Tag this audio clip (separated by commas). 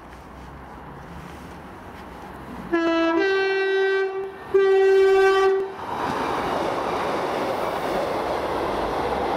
Vehicle